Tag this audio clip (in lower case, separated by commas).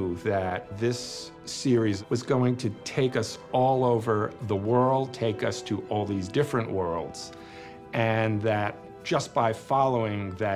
music, speech